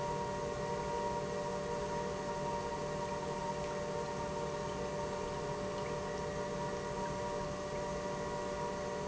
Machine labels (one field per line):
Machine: pump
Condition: normal